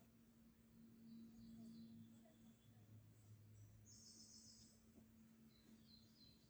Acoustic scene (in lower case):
park